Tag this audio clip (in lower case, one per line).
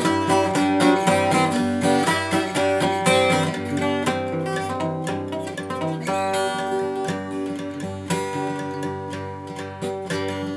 music
plucked string instrument
musical instrument
strum
guitar
acoustic guitar